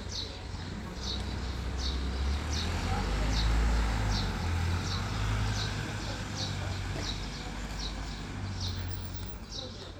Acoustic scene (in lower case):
residential area